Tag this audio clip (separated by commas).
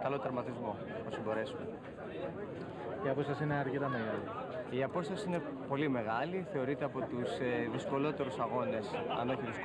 Speech